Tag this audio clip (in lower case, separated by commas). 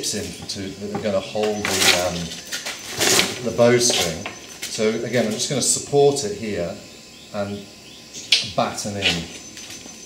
speech